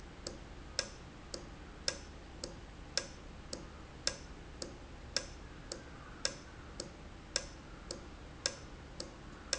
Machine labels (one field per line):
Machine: valve